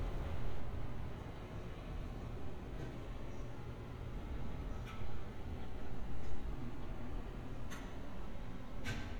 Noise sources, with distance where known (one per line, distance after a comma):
non-machinery impact